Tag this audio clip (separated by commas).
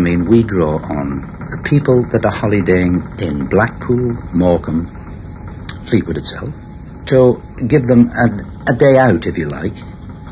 Speech